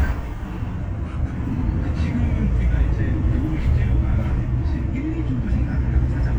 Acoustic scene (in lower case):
bus